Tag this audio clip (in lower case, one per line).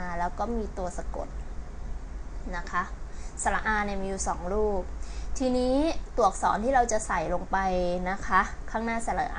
speech